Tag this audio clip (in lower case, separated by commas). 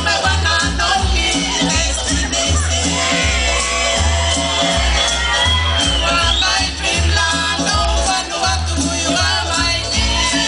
blues, music, folk music